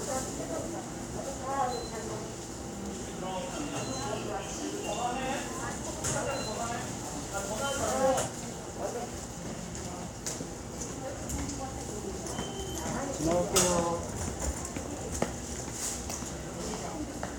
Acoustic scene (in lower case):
subway station